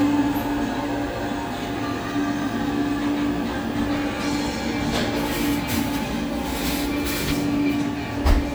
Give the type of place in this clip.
cafe